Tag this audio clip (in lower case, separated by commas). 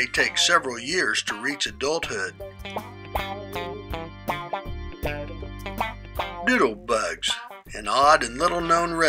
speech, music